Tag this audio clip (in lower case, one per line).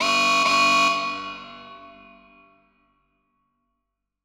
alarm